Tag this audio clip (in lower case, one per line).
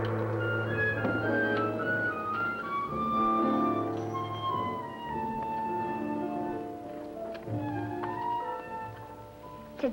music